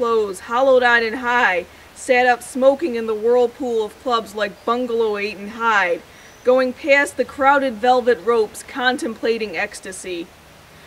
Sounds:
Speech

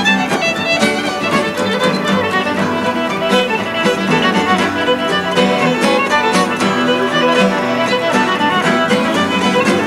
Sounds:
Music, Violin, Musical instrument

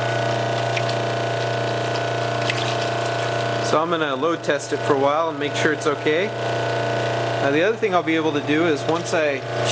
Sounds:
Water, Pump (liquid)

